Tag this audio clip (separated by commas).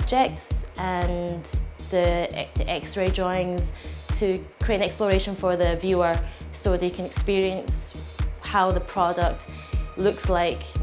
Speech, Music